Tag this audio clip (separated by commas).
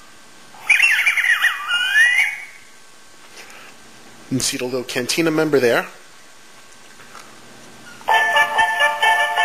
Speech, Music